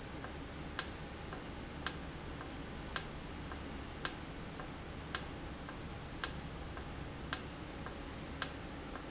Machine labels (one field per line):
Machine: valve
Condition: normal